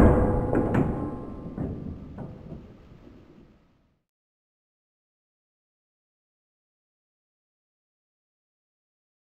Ringing and clanking